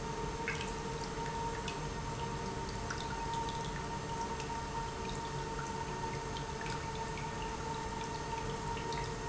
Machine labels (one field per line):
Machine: pump